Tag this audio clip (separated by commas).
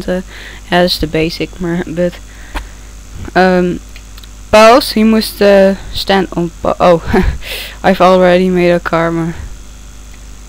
Speech